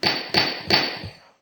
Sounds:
tools, hammer

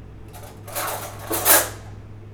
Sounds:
silverware, home sounds

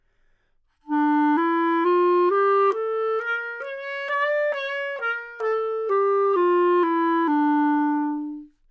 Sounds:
musical instrument, wind instrument, music

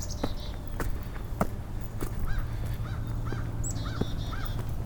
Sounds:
bird, wild animals, animal

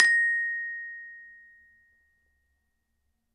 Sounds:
glockenspiel, music, mallet percussion, musical instrument, percussion

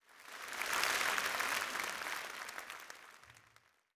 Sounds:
human group actions, crowd, applause

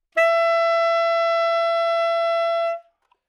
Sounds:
musical instrument, woodwind instrument, music

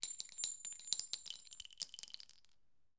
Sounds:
chink, glass

